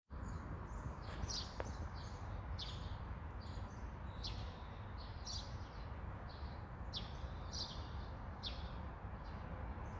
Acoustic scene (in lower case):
park